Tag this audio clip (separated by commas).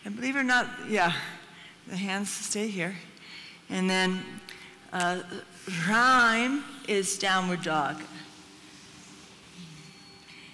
Speech